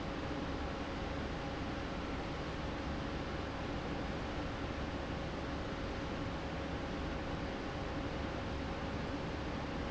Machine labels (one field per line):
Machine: fan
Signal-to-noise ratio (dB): -6 dB